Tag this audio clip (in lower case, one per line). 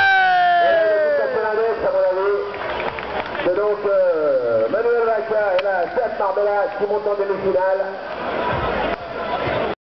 speech